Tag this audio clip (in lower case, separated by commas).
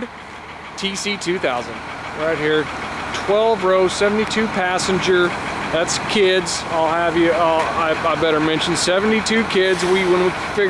vehicle, speech